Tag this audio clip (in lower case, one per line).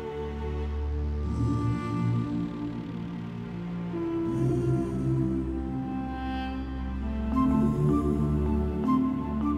music